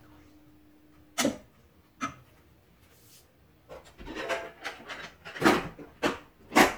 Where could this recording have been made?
in a kitchen